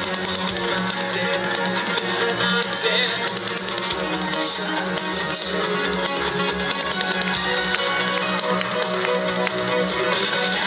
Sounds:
soundtrack music, music

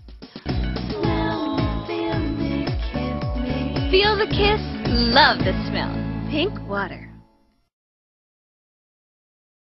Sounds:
speech, music

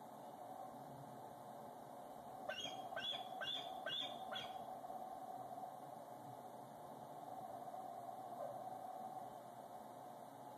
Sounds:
animal

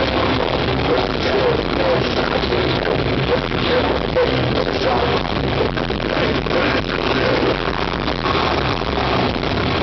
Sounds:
drum kit, drum

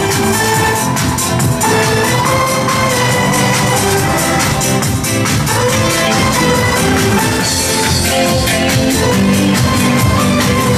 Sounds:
electronic music, techno, music

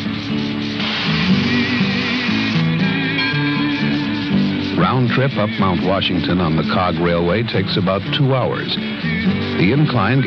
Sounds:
music, speech

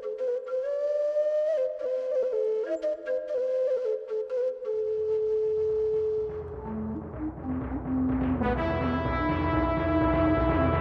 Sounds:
musical instrument, music, orchestra

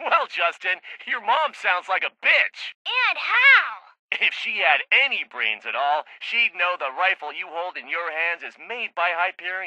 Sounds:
speech

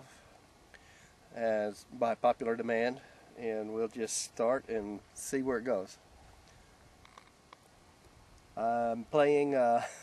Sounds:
speech

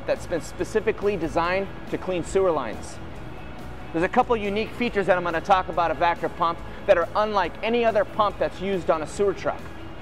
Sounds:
speech, music

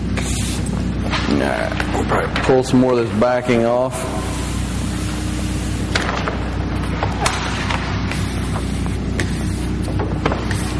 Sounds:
speech, inside a large room or hall

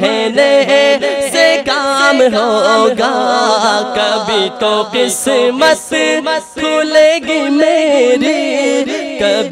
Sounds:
music

